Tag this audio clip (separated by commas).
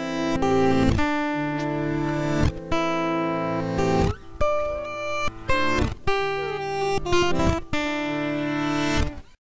Music, Lullaby